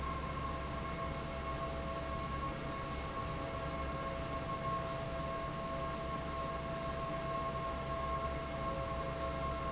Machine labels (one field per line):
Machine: fan